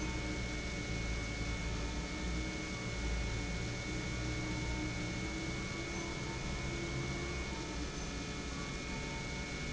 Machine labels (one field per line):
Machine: pump